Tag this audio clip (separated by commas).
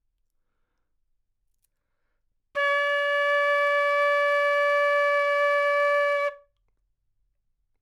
Musical instrument, Wind instrument, Music